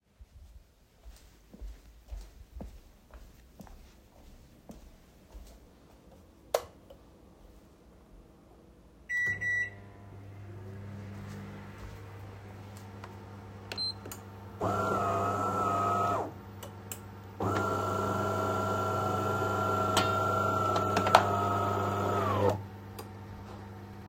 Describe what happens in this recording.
I walked to the kitchen, opened the light and started the microwave. Then I started the coffee machine.